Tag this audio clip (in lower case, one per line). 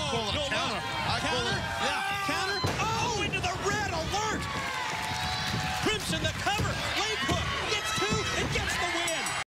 speech